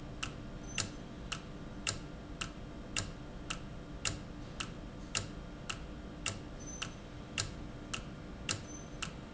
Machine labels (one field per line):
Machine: valve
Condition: normal